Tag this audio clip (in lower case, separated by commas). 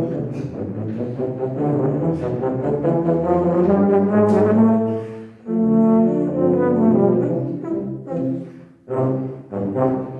brass instrument, musical instrument, inside a large room or hall, music